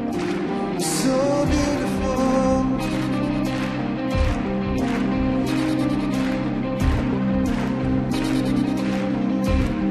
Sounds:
music

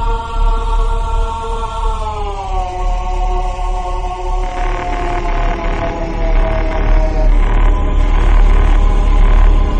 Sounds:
video game music
music

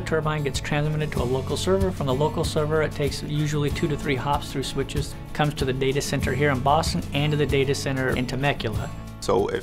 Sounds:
speech
music

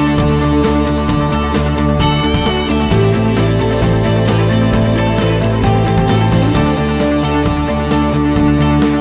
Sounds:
music

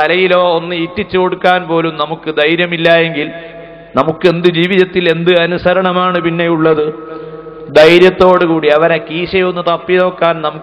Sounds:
speech
male speech
narration

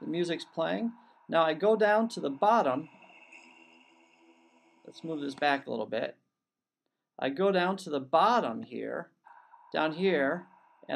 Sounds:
speech

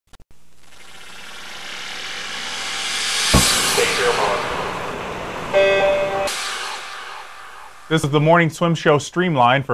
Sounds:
music
speech

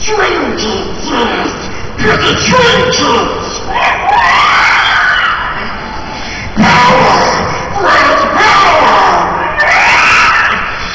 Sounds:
speech

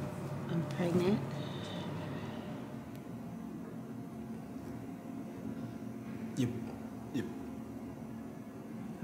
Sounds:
speech

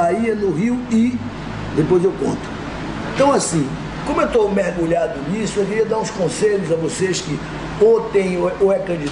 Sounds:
speech

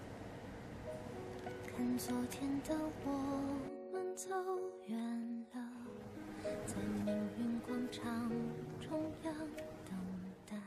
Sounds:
music

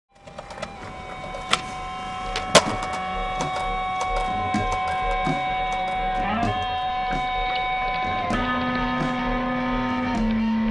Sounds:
music

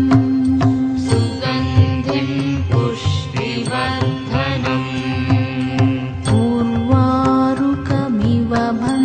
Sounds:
mantra
music

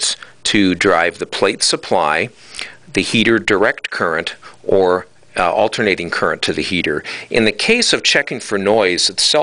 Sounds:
speech

